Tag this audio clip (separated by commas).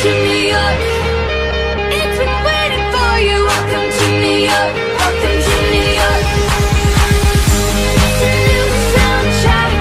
Music